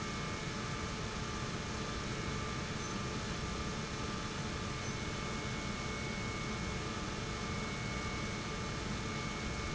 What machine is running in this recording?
pump